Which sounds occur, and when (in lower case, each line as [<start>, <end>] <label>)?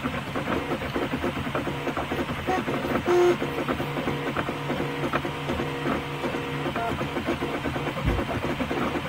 [0.00, 9.05] mechanisms
[0.00, 9.05] printer
[2.45, 2.61] brief tone
[3.07, 3.31] brief tone
[6.75, 6.87] brief tone
[8.03, 8.21] thud